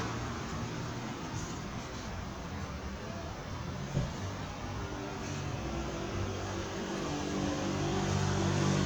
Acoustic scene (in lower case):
street